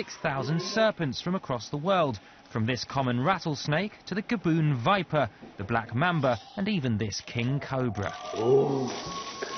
An adult male is speaking, and hissing is present